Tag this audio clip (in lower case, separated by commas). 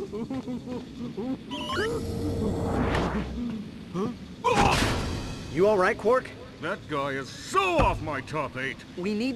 speech